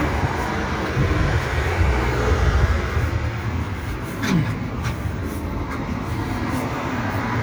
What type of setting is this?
street